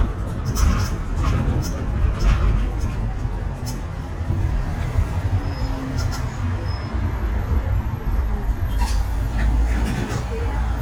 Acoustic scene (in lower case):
bus